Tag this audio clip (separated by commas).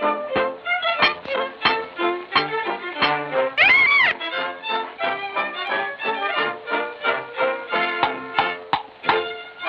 Music